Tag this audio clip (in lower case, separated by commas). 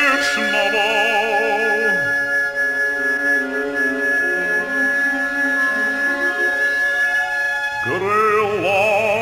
inside a large room or hall, music